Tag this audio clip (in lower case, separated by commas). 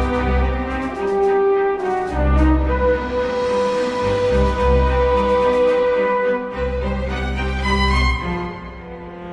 music